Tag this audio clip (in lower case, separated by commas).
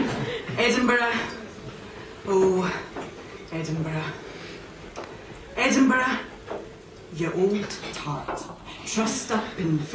speech